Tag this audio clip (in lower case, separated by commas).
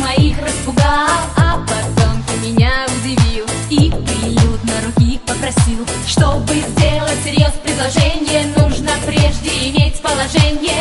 music